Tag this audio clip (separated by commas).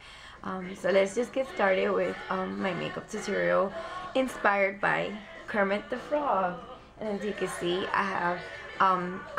Speech